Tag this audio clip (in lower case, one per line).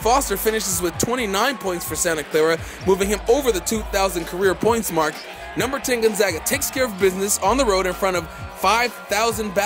shout
music
speech